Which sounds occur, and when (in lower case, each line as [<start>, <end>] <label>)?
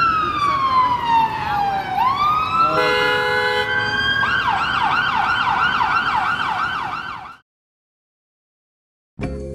[0.00, 7.40] police car (siren)
[0.00, 7.40] roadway noise
[1.38, 3.64] speech babble
[2.71, 3.73] truck horn